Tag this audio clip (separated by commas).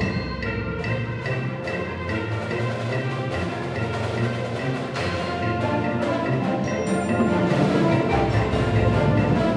Soundtrack music, Music